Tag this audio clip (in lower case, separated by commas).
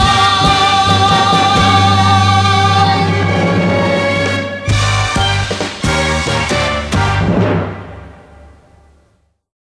music, timpani